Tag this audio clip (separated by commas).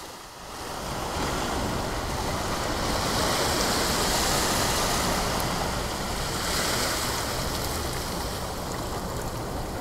Ocean, Waves, Wind, ocean burbling